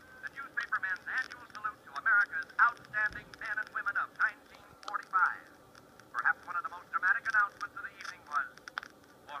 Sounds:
speech

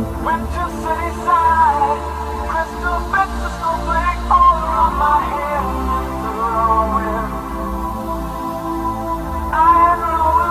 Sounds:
music, electronic music

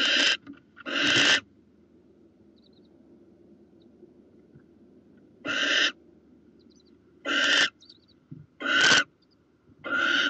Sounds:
owl

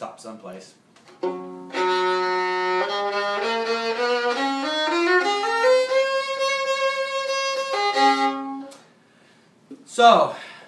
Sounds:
music, fiddle, speech, musical instrument

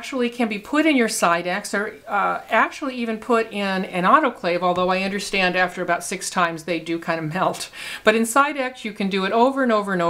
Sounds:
speech

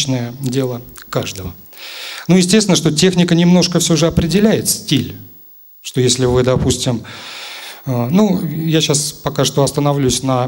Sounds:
speech

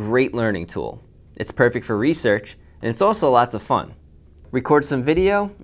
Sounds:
speech

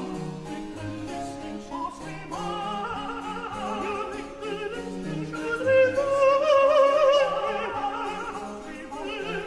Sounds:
music

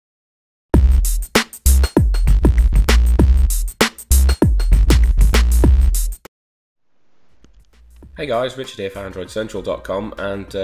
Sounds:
music, speech, drum machine

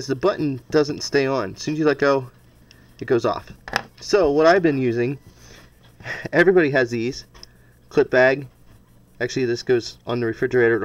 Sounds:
speech, inside a small room

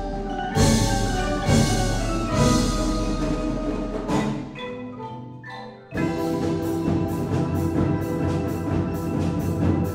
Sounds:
percussion, music

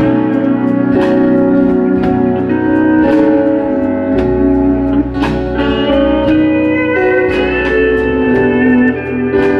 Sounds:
music, electric piano

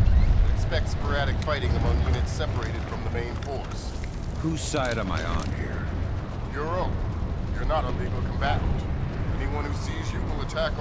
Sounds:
speech

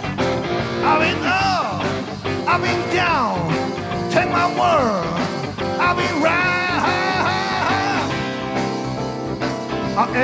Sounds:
guitar, strum, musical instrument, electric guitar, plucked string instrument, acoustic guitar, music

